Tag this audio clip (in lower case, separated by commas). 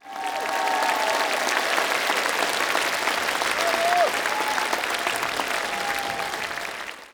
human group actions, applause